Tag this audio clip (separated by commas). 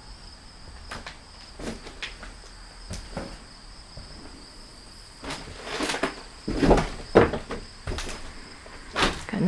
Speech, inside a small room